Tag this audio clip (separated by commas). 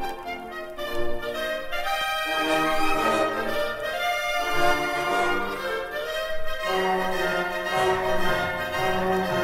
Music